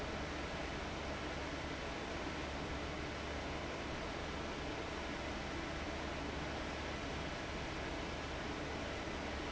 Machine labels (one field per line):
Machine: fan